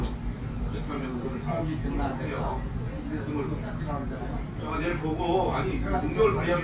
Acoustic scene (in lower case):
restaurant